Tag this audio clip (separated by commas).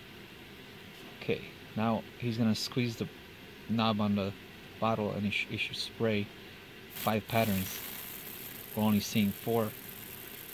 Spray, Speech